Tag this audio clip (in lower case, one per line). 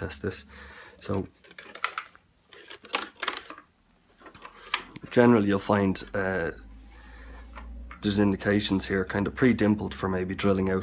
speech